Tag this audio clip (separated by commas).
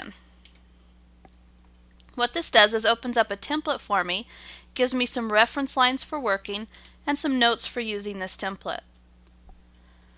Speech